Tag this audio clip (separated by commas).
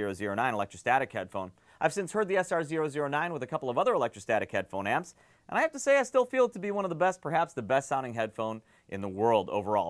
Speech